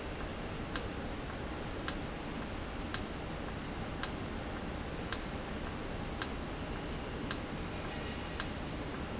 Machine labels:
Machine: valve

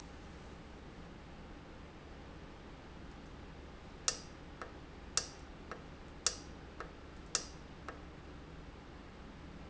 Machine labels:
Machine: valve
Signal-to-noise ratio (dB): 6 dB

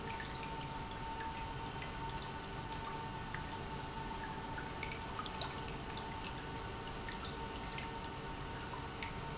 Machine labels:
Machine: pump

